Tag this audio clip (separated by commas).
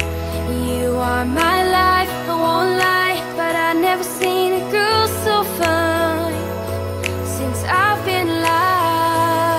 Female singing, Music